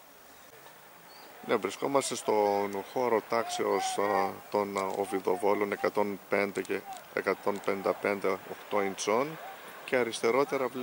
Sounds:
Speech

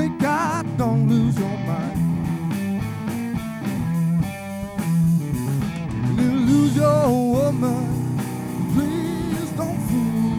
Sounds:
Music

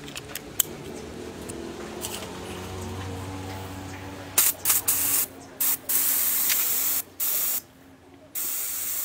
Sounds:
Spray

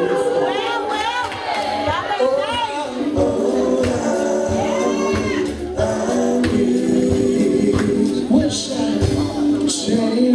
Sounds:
Male singing, Choir, Speech, Music

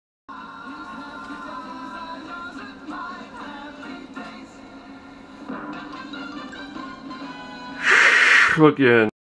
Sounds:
Music, Speech, Television

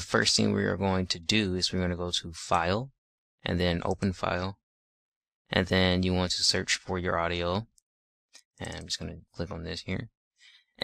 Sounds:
Speech

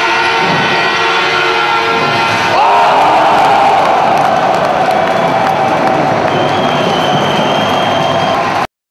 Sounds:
Music, Speech

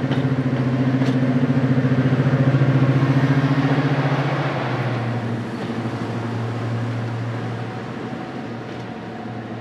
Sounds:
Engine, Vehicle, Heavy engine (low frequency)

